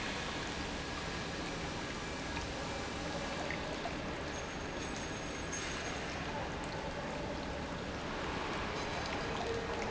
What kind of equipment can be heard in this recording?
pump